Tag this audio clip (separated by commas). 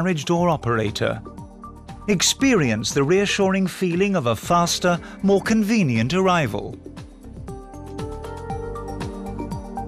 Music, Speech